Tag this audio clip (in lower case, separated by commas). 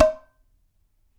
domestic sounds, dishes, pots and pans